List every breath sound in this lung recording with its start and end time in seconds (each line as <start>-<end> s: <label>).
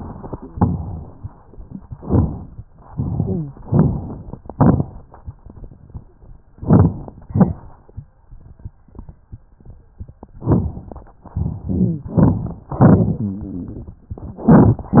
0.47-1.16 s: exhalation
0.47-1.16 s: crackles
1.95-2.64 s: inhalation
1.95-2.64 s: crackles
2.85-3.53 s: exhalation
2.85-3.53 s: crackles
3.66-4.35 s: inhalation
3.66-4.35 s: crackles
4.44-4.95 s: exhalation
4.44-4.95 s: crackles
6.58-7.17 s: inhalation
6.58-7.17 s: crackles
7.27-7.86 s: exhalation
7.27-7.86 s: crackles
10.38-11.10 s: inhalation
10.38-11.10 s: crackles
12.05-12.69 s: exhalation
12.05-12.69 s: crackles
12.79-13.51 s: inhalation
12.79-13.51 s: crackles
14.36-15.00 s: exhalation
14.36-15.00 s: crackles